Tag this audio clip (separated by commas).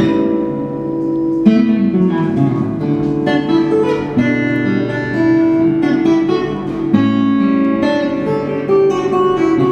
Electric guitar, Plucked string instrument, Guitar, Musical instrument, Music